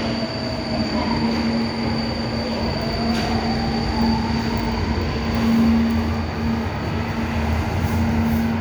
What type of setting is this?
subway station